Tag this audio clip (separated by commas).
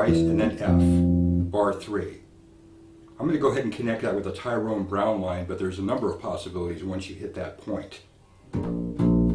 Music, Blues, Speech